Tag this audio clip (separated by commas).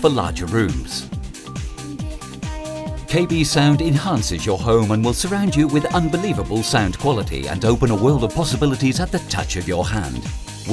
Music, Speech